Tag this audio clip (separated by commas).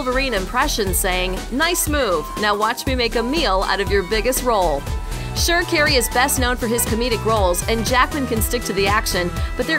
Music, Speech